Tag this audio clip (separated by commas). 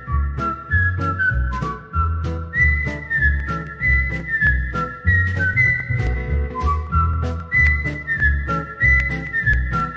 people whistling